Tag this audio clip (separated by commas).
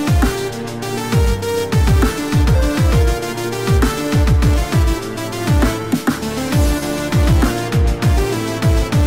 Electronic music, Music, Dubstep